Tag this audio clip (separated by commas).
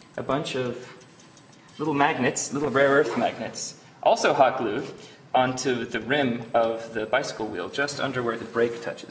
Speech